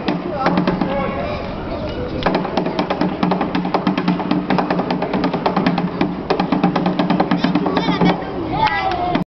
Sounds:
Speech, Music

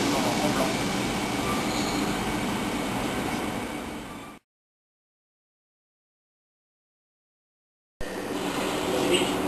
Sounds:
Speech

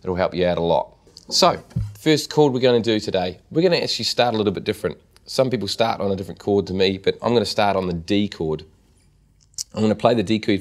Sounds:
Speech

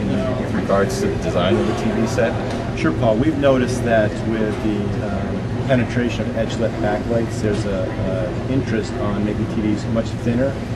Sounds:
Speech

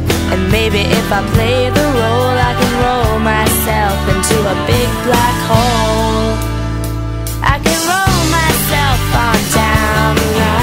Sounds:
Music

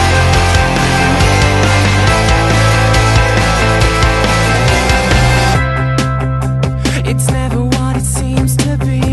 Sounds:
Music

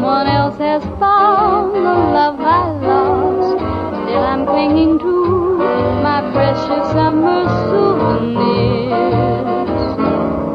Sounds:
Music, outside, urban or man-made

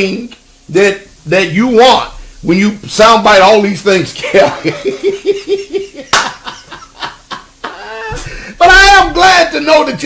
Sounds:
inside a small room, Speech

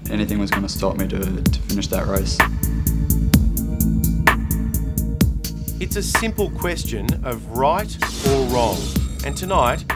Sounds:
Music, inside a large room or hall, Speech

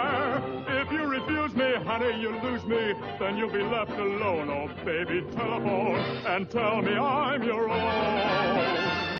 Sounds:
Music

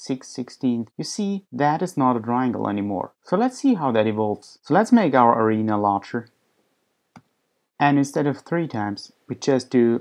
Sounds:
Speech

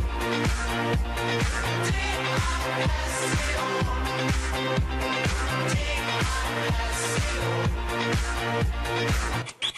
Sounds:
Independent music, Music

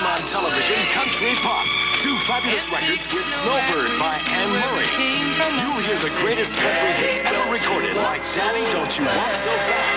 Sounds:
Speech, Music, Bluegrass

